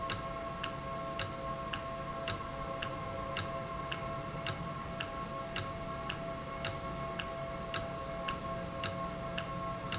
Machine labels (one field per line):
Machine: valve